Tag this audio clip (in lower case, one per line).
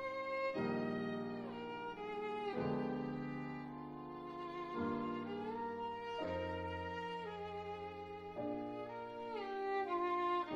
music
musical instrument
violin